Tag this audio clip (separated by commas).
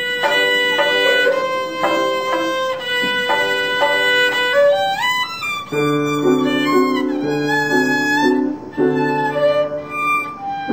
Music, Bowed string instrument, Musical instrument, Classical music, Violin, Traditional music